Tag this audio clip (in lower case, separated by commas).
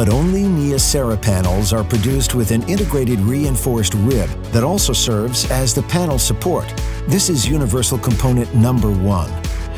music, speech